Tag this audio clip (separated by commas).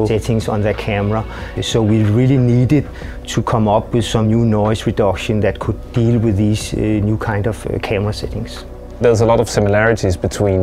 Music, Speech